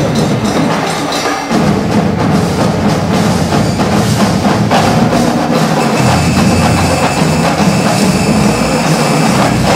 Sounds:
Percussion, Music

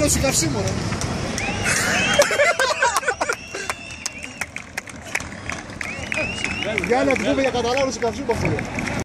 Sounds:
Vehicle, Speech

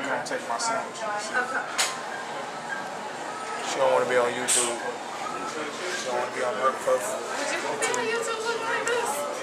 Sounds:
inside a public space, Speech, Music

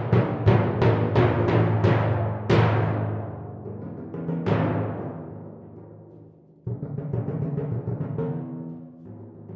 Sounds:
Drum kit, Musical instrument, Music, Percussion, Drum, Timpani

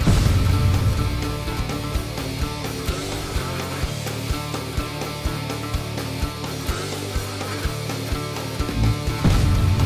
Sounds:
Music

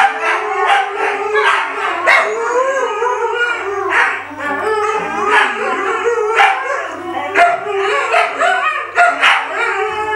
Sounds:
dog howling

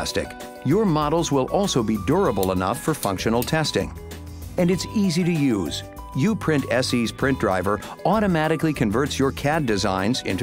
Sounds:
Speech, Music

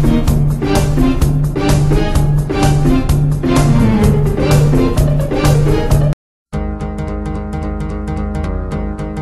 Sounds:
Exciting music, Music

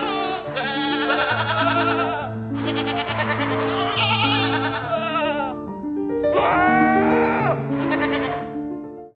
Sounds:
Bleat, Sheep, Music

